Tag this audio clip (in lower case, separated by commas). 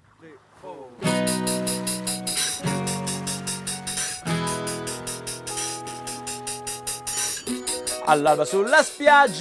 speech, music